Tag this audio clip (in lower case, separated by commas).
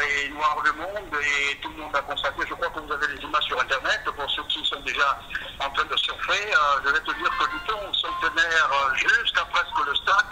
speech, music